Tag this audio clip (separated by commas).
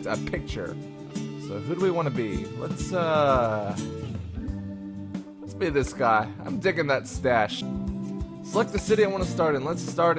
Speech, Music